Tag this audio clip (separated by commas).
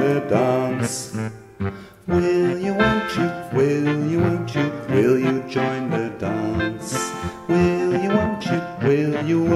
Music